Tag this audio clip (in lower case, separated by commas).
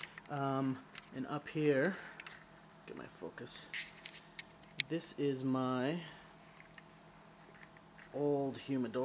speech, inside a small room